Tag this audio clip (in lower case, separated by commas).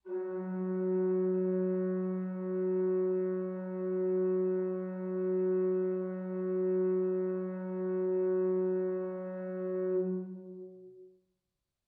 organ, keyboard (musical), musical instrument, music